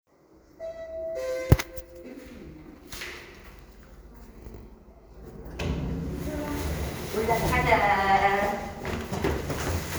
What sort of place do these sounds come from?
elevator